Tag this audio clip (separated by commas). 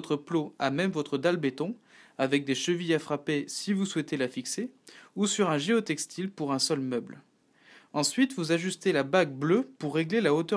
Speech